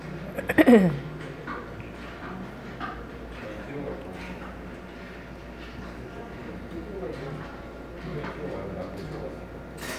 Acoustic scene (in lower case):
cafe